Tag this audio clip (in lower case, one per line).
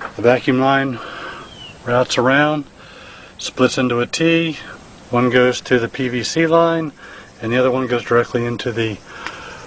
speech